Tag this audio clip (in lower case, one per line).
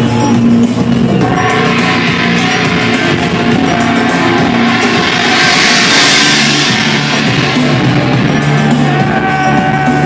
gong